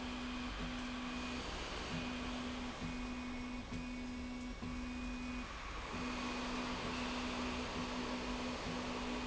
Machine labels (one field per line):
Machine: slide rail